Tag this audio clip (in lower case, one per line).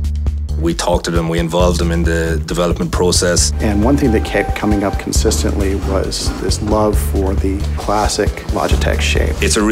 speech
music